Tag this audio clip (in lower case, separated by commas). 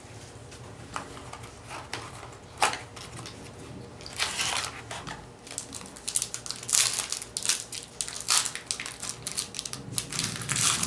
inside a small room